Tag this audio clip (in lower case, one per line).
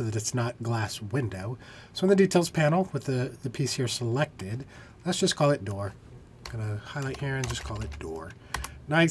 speech